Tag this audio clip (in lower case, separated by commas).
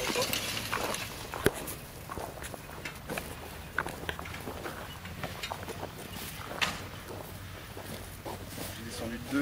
speech